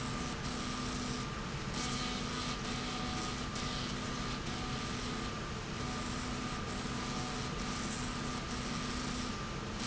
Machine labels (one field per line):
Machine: slide rail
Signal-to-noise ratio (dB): -6 dB